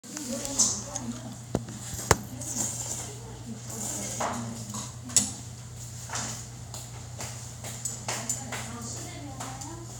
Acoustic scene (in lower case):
restaurant